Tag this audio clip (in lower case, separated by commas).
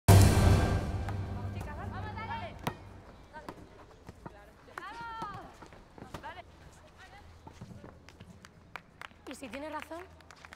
playing volleyball